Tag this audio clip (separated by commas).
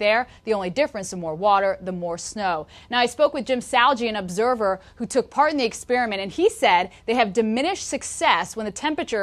Speech